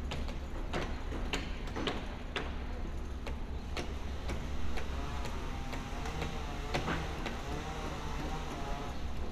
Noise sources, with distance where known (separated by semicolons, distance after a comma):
unidentified impact machinery, near